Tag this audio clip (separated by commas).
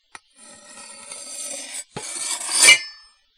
Cutlery, home sounds